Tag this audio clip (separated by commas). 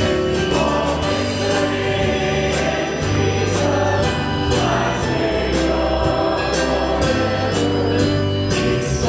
Gospel music, Music